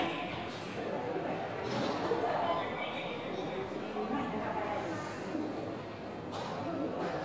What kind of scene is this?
subway station